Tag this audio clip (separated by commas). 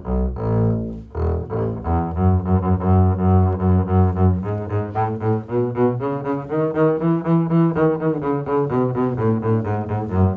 playing double bass